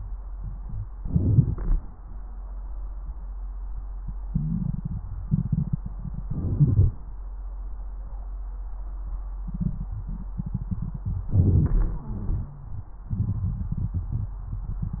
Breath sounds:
0.94-1.79 s: inhalation
0.94-1.79 s: crackles
4.28-4.78 s: wheeze
6.25-6.97 s: inhalation
11.32-13.06 s: inhalation
11.76-12.79 s: wheeze
13.12-15.00 s: exhalation

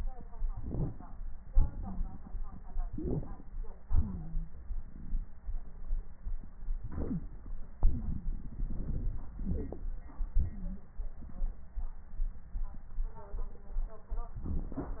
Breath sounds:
0.51-1.22 s: inhalation
0.51-1.22 s: crackles
1.46-2.70 s: exhalation
1.46-2.70 s: crackles
2.88-3.61 s: inhalation
2.88-3.61 s: crackles
3.93-4.51 s: wheeze
6.81-7.40 s: inhalation
7.09-7.21 s: wheeze
7.80-9.17 s: exhalation
7.80-9.17 s: crackles
9.37-9.92 s: inhalation
9.37-9.92 s: crackles

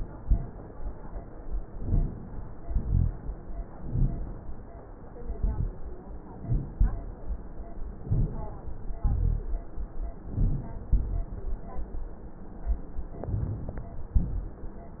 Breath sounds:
1.75-2.16 s: inhalation
2.64-3.12 s: exhalation
3.80-4.27 s: inhalation
5.28-5.76 s: exhalation
8.09-8.47 s: inhalation
9.01-9.54 s: exhalation
10.32-10.85 s: inhalation
10.89-11.68 s: exhalation
13.24-13.77 s: inhalation
14.19-14.72 s: exhalation

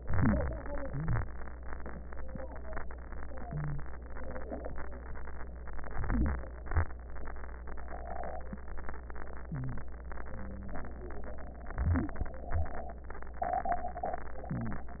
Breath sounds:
0.00-0.81 s: inhalation
0.00-0.81 s: wheeze
0.84-1.65 s: exhalation
0.84-1.65 s: wheeze
5.90-7.55 s: wheeze
5.94-6.75 s: inhalation
6.76-7.57 s: exhalation
9.51-11.15 s: wheeze
9.53-10.32 s: inhalation
10.35-11.14 s: exhalation
11.68-13.05 s: wheeze
11.70-12.35 s: inhalation
12.36-13.06 s: exhalation
14.54-15.00 s: inhalation

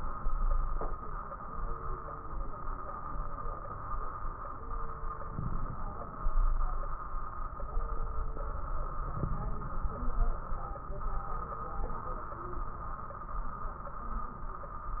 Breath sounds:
5.34-6.37 s: inhalation
5.34-6.37 s: crackles
9.08-10.11 s: inhalation
9.08-10.11 s: crackles

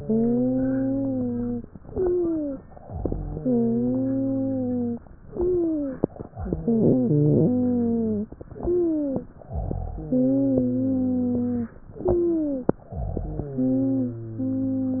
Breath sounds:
0.00-1.63 s: wheeze
1.71-2.58 s: inhalation
1.71-2.58 s: wheeze
2.88-3.44 s: exhalation
3.36-5.02 s: wheeze
5.27-6.15 s: inhalation
5.27-6.15 s: wheeze
6.34-8.26 s: exhalation
6.36-8.28 s: wheeze
8.52-9.39 s: inhalation
8.52-9.39 s: wheeze
9.51-10.03 s: exhalation
9.96-11.76 s: wheeze
11.97-12.85 s: inhalation
11.97-12.85 s: wheeze
12.88-13.76 s: exhalation
12.88-15.00 s: wheeze

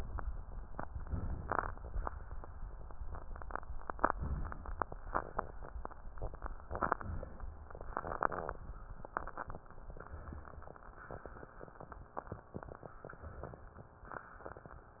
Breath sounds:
0.99-1.88 s: inhalation
3.82-4.71 s: inhalation
6.49-7.38 s: inhalation
10.02-10.91 s: inhalation
13.07-13.96 s: inhalation

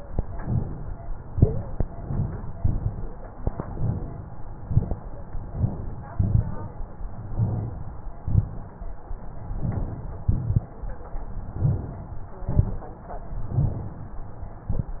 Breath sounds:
0.00-0.89 s: inhalation
1.25-1.80 s: wheeze
2.49-2.98 s: crackles
2.51-3.36 s: inhalation
2.55-3.46 s: exhalation
3.61-4.50 s: inhalation
3.68-4.18 s: crackles
4.58-5.47 s: exhalation
4.60-5.09 s: crackles
6.08-6.58 s: crackles
6.08-6.96 s: inhalation
6.18-7.08 s: inhalation
7.14-8.02 s: exhalation
7.28-7.77 s: crackles
8.17-9.04 s: inhalation
8.21-8.70 s: crackles
9.33-10.20 s: exhalation
10.24-11.12 s: inhalation
10.26-10.76 s: crackles
11.30-12.18 s: exhalation
11.53-12.03 s: crackles
12.25-13.13 s: inhalation
12.37-12.94 s: crackles
13.26-14.14 s: exhalation
13.47-14.04 s: crackles

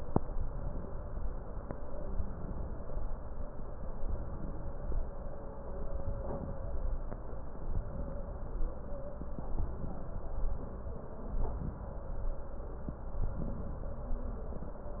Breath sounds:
2.07-2.98 s: inhalation
4.07-4.98 s: inhalation
5.92-6.83 s: inhalation
7.70-8.61 s: inhalation
9.55-10.46 s: inhalation
11.25-12.16 s: inhalation
13.15-14.06 s: inhalation

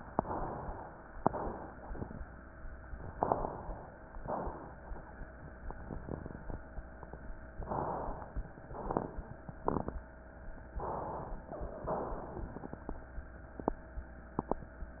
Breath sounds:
1.18-2.61 s: exhalation
3.14-3.94 s: inhalation
4.20-4.85 s: exhalation
7.62-8.40 s: inhalation
8.70-9.37 s: exhalation
8.70-9.37 s: crackles
10.81-11.48 s: inhalation
11.94-13.25 s: exhalation
11.94-13.25 s: crackles

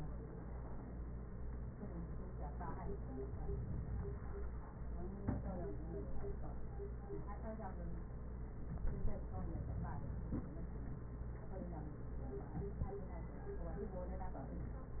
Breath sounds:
2.99-4.49 s: inhalation
8.72-10.62 s: inhalation

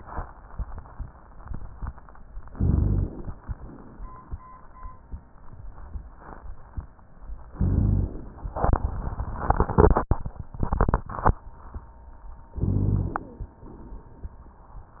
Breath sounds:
2.49-3.36 s: inhalation
2.49-3.36 s: rhonchi
3.49-4.37 s: exhalation
7.53-8.24 s: rhonchi
7.53-8.41 s: inhalation
12.54-13.24 s: rhonchi
12.54-13.47 s: inhalation
13.55-14.48 s: exhalation

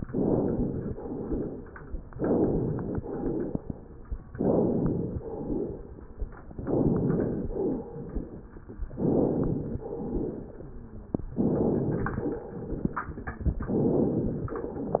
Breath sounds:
0.04-0.96 s: inhalation
0.92-1.80 s: exhalation
2.15-2.95 s: inhalation
2.97-3.75 s: exhalation
4.35-5.23 s: inhalation
5.19-6.05 s: exhalation
6.58-7.51 s: inhalation
7.56-8.46 s: exhalation
8.92-9.82 s: inhalation
9.83-10.73 s: exhalation
10.64-11.14 s: wheeze
11.36-12.40 s: inhalation
12.41-13.64 s: crackles
13.69-14.47 s: inhalation

